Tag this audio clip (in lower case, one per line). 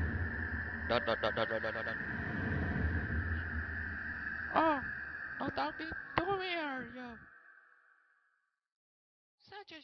speech